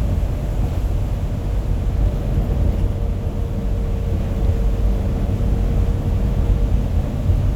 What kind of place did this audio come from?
bus